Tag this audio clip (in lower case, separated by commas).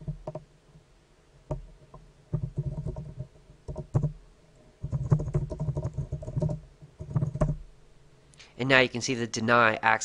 computer keyboard